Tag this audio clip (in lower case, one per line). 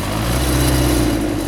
engine